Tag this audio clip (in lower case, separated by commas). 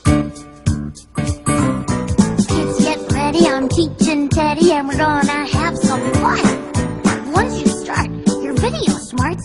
music